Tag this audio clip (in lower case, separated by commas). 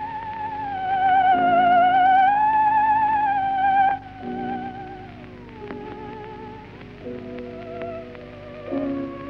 playing theremin